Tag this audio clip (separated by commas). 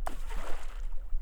Liquid, splatter, Water